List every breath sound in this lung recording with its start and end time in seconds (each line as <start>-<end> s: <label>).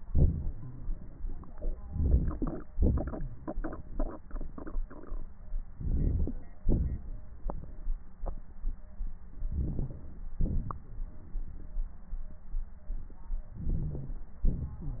1.86-2.30 s: inhalation
2.73-3.13 s: exhalation
5.78-6.34 s: inhalation
6.68-7.02 s: exhalation
9.48-10.00 s: inhalation
10.43-10.87 s: exhalation
13.62-14.17 s: inhalation
13.73-14.13 s: wheeze
14.49-15.00 s: exhalation
14.82-15.00 s: wheeze